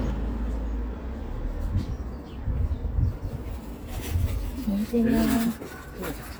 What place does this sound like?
residential area